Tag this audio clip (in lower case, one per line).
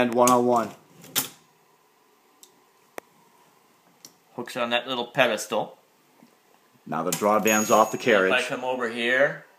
speech